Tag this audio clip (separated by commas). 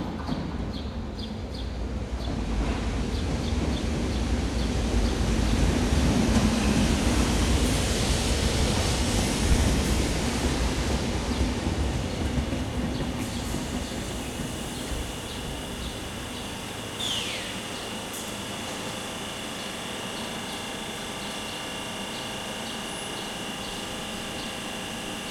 Rail transport, Train, Vehicle